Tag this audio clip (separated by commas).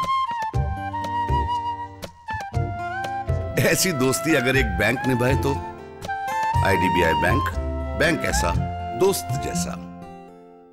Music, Speech